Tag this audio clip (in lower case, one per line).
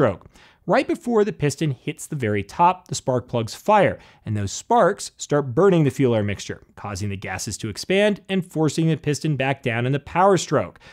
speech